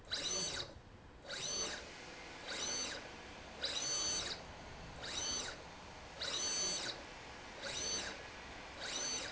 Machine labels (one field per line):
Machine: slide rail